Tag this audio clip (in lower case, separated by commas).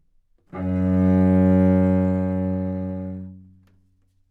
musical instrument, music, bowed string instrument